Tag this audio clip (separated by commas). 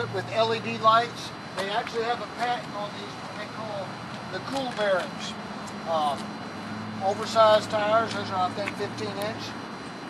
Speech